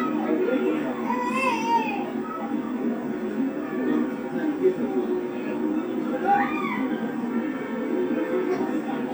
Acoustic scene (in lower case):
park